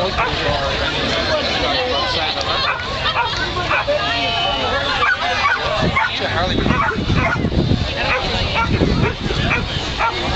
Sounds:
pets, dog, animal, bow-wow, speech

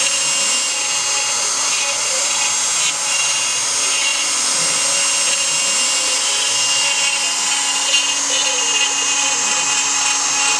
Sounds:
tools

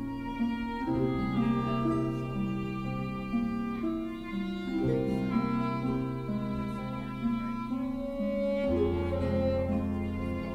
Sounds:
music

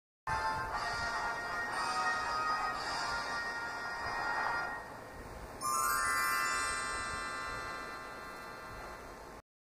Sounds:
television, music

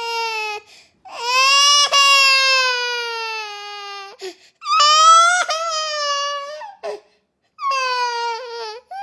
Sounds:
whimper, wail

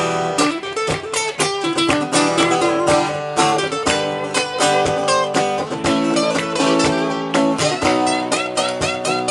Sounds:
music, musical instrument, mandolin

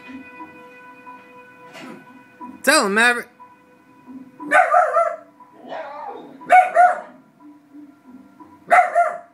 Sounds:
music, animal, bow-wow, domestic animals, dog, speech

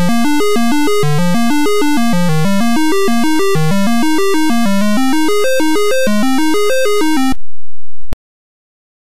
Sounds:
music, soundtrack music

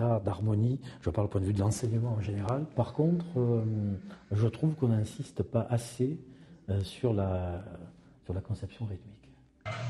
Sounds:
speech

